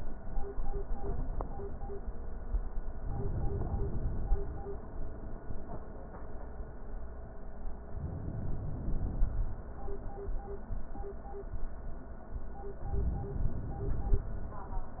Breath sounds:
2.98-4.85 s: inhalation
7.90-9.60 s: inhalation
12.84-14.42 s: inhalation

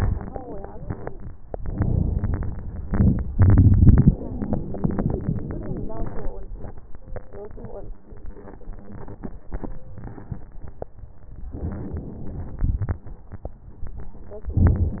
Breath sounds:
11.57-12.60 s: inhalation
12.60-13.34 s: exhalation
14.55-15.00 s: inhalation

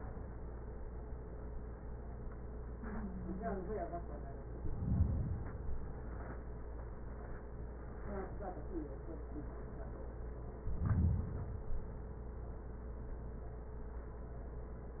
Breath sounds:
4.53-6.03 s: inhalation
10.54-12.04 s: inhalation

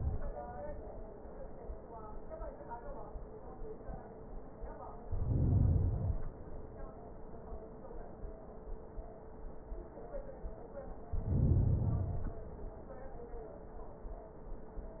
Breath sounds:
5.00-6.50 s: inhalation
11.05-12.55 s: inhalation

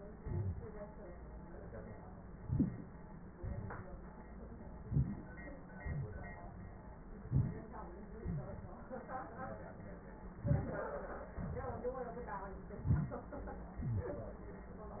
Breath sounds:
2.39-3.04 s: inhalation
2.58-2.69 s: wheeze
3.42-4.02 s: exhalation
4.86-5.46 s: inhalation
5.77-6.55 s: exhalation
7.19-7.70 s: inhalation
8.25-8.80 s: exhalation
10.44-10.95 s: inhalation
11.35-11.90 s: exhalation
12.75-13.30 s: inhalation
13.84-14.01 s: rhonchi
13.87-14.42 s: exhalation

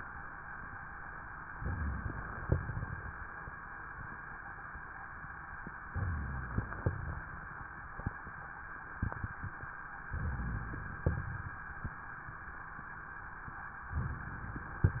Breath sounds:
1.50-2.45 s: inhalation
1.54-2.41 s: rhonchi
2.45-3.17 s: exhalation
2.45-3.17 s: crackles
5.92-6.81 s: inhalation
5.92-6.81 s: rhonchi
6.81-7.46 s: exhalation
6.81-7.46 s: crackles
10.13-11.04 s: inhalation
10.13-11.04 s: rhonchi
11.04-11.63 s: exhalation
11.04-11.63 s: crackles
13.95-14.86 s: inhalation
13.95-14.86 s: rhonchi

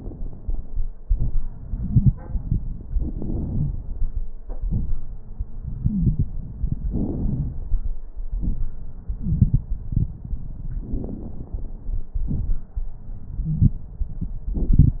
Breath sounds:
2.90-4.23 s: inhalation
2.90-4.23 s: crackles
4.52-5.04 s: exhalation
4.52-5.04 s: crackles
5.84-6.37 s: wheeze
6.89-7.89 s: inhalation
6.89-7.89 s: crackles
8.16-8.65 s: exhalation
8.16-8.65 s: crackles
10.74-12.12 s: inhalation
10.74-12.12 s: crackles
12.14-12.78 s: exhalation
12.14-12.78 s: crackles
13.44-13.79 s: wheeze

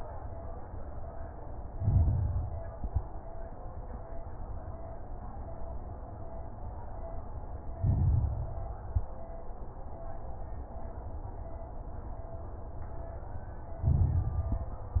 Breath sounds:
1.69-2.69 s: inhalation
1.69-2.69 s: crackles
2.72-3.12 s: exhalation
2.72-3.12 s: crackles
7.77-8.78 s: inhalation
7.77-8.78 s: crackles
8.85-9.26 s: exhalation
8.85-9.26 s: crackles
13.81-15.00 s: inhalation
13.81-15.00 s: crackles

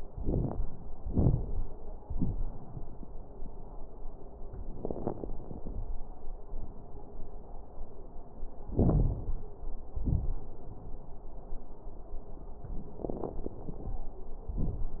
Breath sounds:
0.00-0.58 s: inhalation
0.00-0.58 s: crackles
1.01-1.60 s: exhalation
1.01-1.60 s: crackles
8.69-9.43 s: inhalation
8.69-9.43 s: crackles
10.00-10.43 s: exhalation
10.00-10.43 s: crackles
13.06-13.95 s: inhalation
13.06-13.95 s: crackles
14.53-15.00 s: exhalation
14.53-15.00 s: crackles

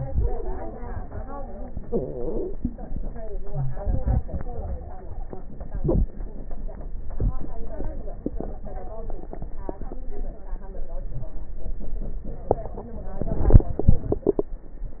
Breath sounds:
1.83-2.56 s: stridor
3.45-3.80 s: wheeze
4.25-5.48 s: stridor
8.57-9.14 s: stridor

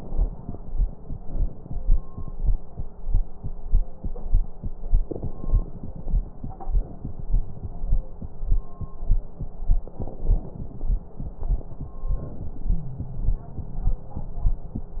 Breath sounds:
5.01-5.82 s: inhalation
5.01-5.82 s: crackles
9.86-11.20 s: inhalation
9.86-11.20 s: crackles
12.00-13.38 s: inhalation
12.71-13.38 s: wheeze

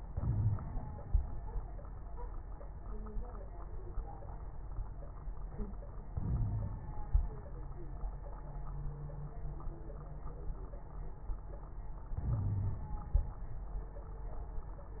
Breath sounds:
0.07-0.57 s: wheeze
0.07-0.76 s: inhalation
6.07-7.05 s: inhalation
6.24-6.78 s: wheeze
12.16-12.84 s: wheeze
12.16-12.97 s: inhalation

